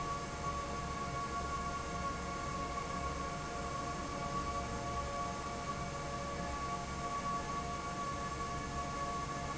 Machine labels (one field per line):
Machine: fan